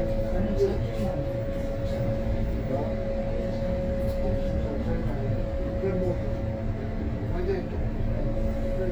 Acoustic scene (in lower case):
bus